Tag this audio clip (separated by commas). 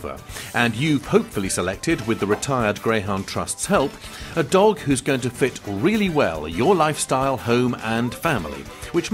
Music, Speech